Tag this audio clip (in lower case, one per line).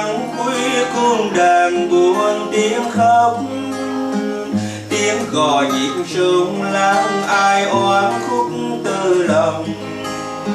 electric guitar
music
musical instrument
plucked string instrument
guitar
strum